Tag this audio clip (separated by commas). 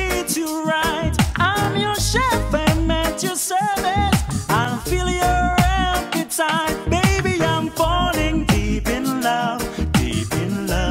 Happy music, Music